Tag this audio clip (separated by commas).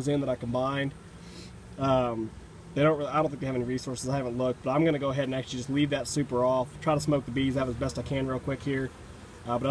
Speech, outside, rural or natural